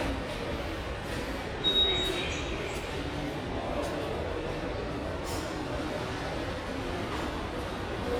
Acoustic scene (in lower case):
subway station